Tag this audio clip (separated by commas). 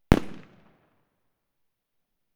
Fireworks, Explosion